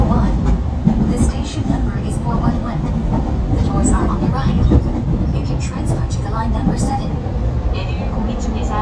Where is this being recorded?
on a subway train